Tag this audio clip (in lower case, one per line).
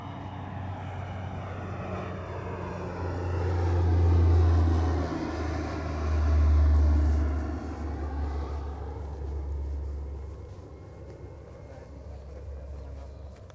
vehicle
aircraft
fixed-wing aircraft